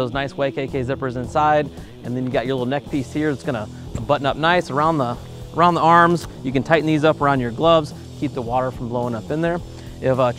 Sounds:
speech
music

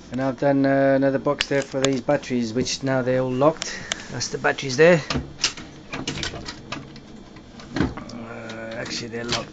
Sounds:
speech

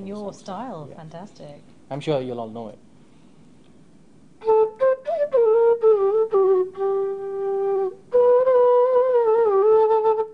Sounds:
wind instrument
flute

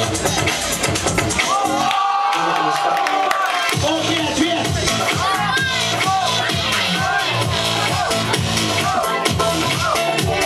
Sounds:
music
speech

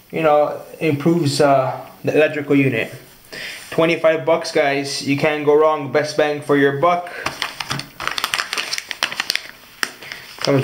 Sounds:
speech

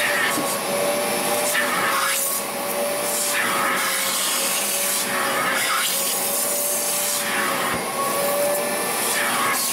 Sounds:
vacuum cleaner

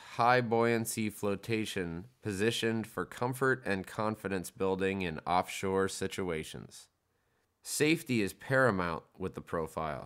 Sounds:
speech

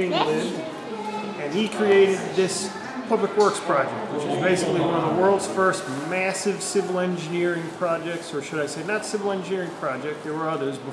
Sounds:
speech

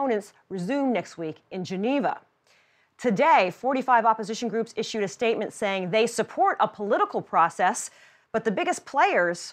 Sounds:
speech

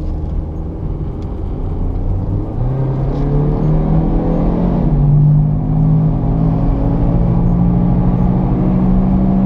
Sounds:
skidding

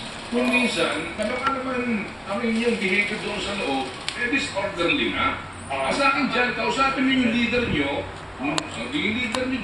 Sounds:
speech

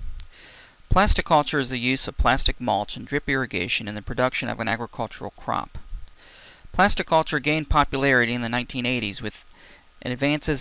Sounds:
speech

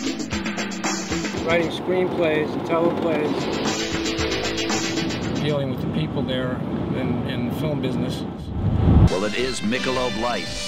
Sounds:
speech
music

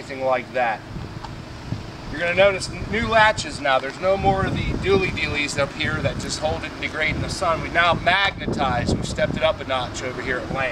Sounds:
speech

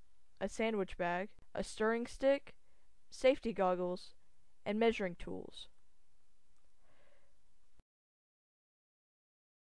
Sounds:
speech

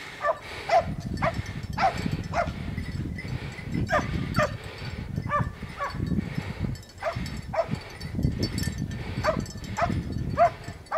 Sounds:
dog baying

